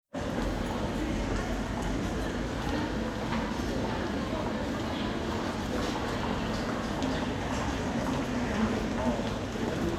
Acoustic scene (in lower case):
crowded indoor space